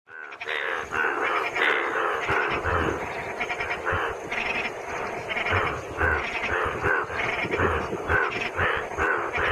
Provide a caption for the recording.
Frogs croaking and crickets chirping